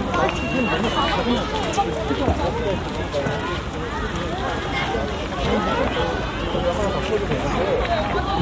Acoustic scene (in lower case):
park